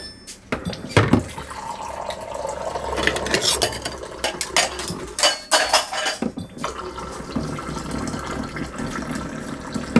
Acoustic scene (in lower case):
kitchen